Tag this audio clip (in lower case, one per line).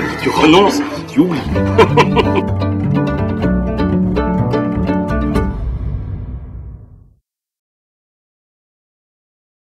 speech
music